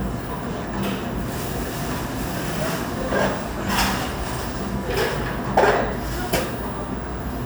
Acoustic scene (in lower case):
cafe